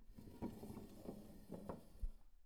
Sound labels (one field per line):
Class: furniture moving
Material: wooden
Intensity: low